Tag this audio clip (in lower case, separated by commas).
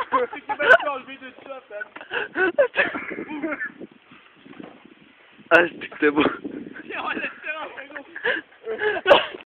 speech